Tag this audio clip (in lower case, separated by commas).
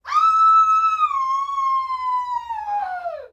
human voice, screaming